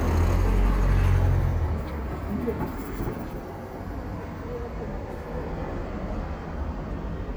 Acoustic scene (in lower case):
street